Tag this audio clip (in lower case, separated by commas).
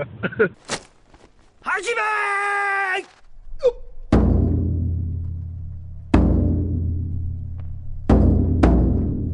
timpani, music, speech